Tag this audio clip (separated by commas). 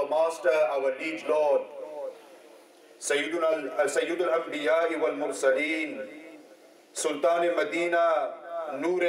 Narration, man speaking, Speech